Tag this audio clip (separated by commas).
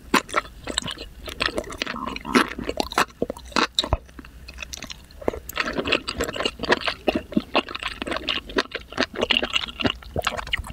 people slurping